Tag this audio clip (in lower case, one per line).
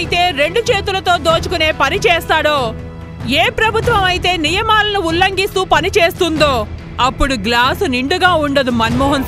speech
music
monologue
female speech